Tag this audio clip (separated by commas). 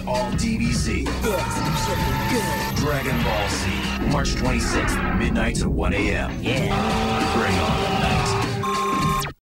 Speech, Music